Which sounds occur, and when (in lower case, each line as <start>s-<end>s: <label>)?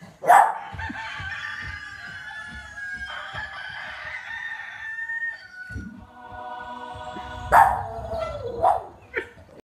0.0s-9.6s: mechanisms
0.2s-0.6s: bark
0.5s-5.9s: crowing
0.7s-4.1s: music
5.7s-8.7s: music
7.5s-9.0s: bark
9.1s-9.4s: dog